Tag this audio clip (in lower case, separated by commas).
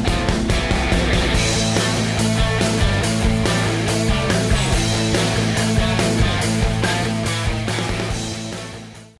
music